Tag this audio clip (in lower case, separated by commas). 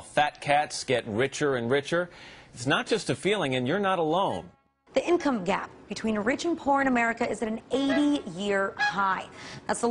music, speech